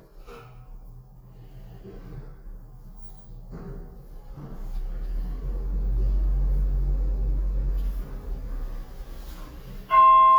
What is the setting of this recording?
elevator